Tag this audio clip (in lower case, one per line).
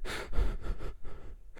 respiratory sounds
breathing